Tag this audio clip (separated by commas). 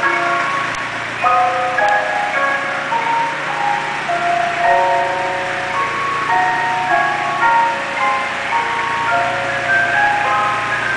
ice cream van